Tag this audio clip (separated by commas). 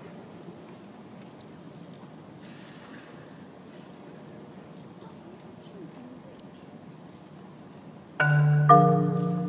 Speech